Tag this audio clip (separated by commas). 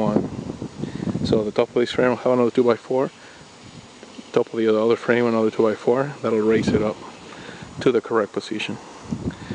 outside, rural or natural, Speech